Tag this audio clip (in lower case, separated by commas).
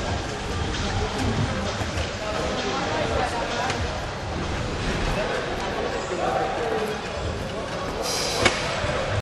speech, music